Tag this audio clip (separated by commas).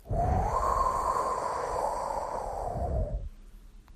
Wind